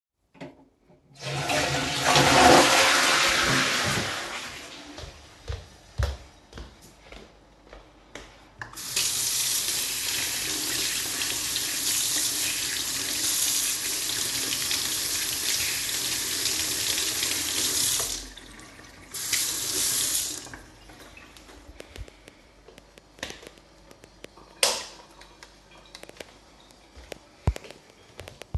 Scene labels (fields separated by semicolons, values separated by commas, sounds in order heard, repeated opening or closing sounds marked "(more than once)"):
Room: bathroom; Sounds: toilet flushing, footsteps, running water, light switch